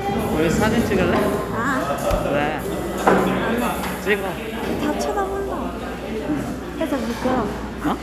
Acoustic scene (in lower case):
cafe